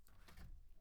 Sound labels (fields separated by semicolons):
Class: window; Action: opening